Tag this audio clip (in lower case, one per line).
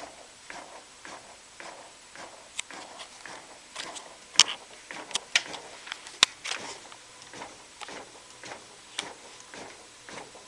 inside a large room or hall
printer